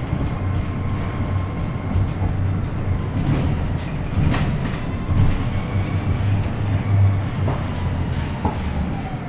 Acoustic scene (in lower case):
bus